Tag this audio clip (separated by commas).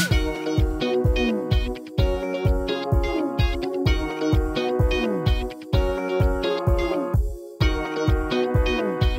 Music